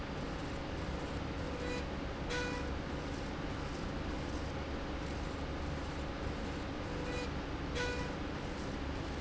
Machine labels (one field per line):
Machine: slide rail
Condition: normal